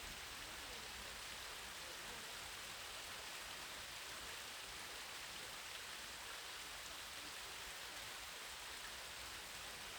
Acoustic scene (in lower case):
park